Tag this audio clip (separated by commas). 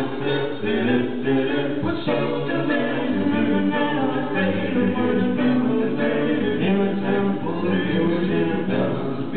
Vocal music, Music, A capella